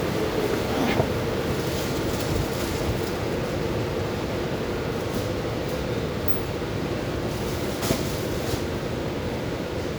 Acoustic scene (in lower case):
subway station